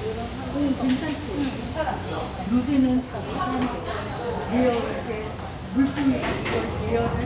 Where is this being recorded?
in a restaurant